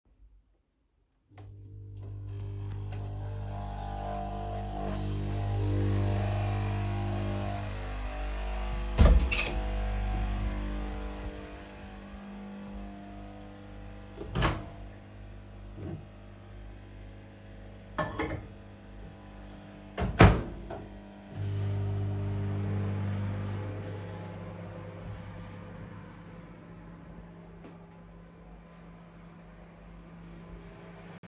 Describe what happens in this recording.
I turned coffee machine on went to the kitchen and turned microwave then returned to the room with with coffee machine